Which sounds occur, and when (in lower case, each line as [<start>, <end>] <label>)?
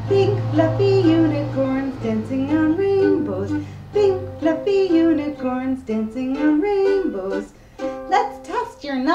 [0.00, 3.61] female singing
[0.00, 8.42] music
[0.00, 9.14] mechanisms
[3.62, 3.84] breathing
[3.87, 7.48] female singing
[7.55, 7.92] breathing
[8.07, 9.14] woman speaking